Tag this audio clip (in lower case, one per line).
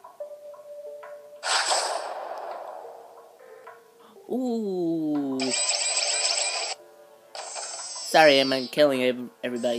speech
music
inside a small room